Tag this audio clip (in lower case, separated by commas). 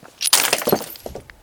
shatter, glass